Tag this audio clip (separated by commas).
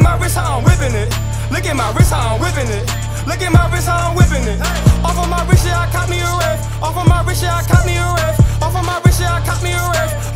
Music